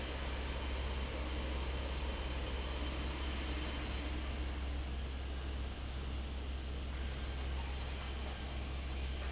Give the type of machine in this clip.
fan